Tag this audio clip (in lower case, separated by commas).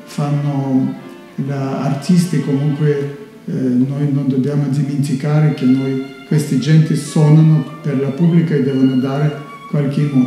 speech, music, musical instrument, violin